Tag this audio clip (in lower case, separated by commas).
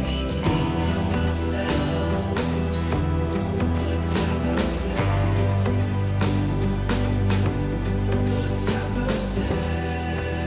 music